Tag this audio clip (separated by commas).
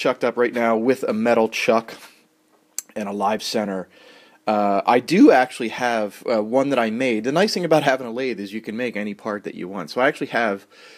Speech